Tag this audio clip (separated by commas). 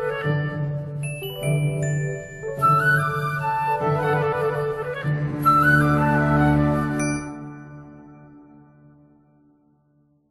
Music